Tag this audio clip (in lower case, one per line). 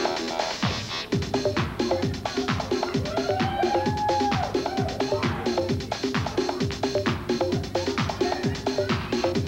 music